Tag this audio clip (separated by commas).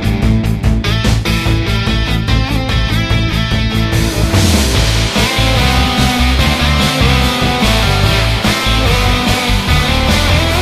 Theme music, Music